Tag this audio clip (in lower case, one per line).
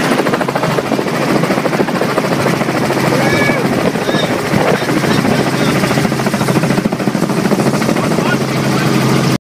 speech